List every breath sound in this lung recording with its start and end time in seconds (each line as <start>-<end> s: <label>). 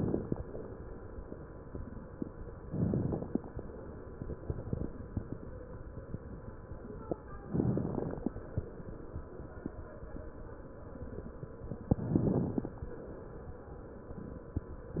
2.56-3.44 s: inhalation
2.56-3.44 s: crackles
7.48-8.35 s: inhalation
7.48-8.35 s: crackles
11.90-12.77 s: inhalation
11.90-12.77 s: crackles